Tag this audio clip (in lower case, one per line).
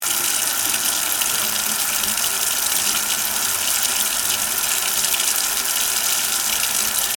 home sounds
sink (filling or washing)